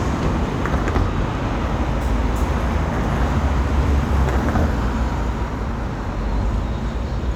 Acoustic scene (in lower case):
street